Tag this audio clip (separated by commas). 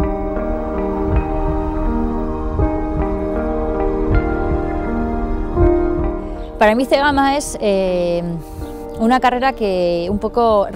Speech, Music, outside, rural or natural